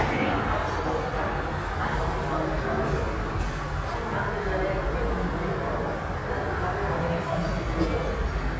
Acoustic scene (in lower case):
subway station